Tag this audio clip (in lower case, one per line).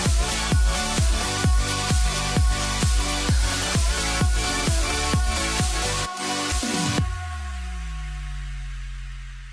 music